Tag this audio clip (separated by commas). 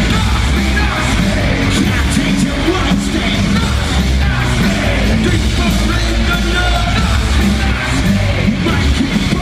Pop music, Music